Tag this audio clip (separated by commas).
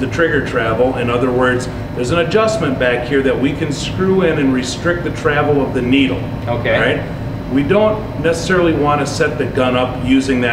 Speech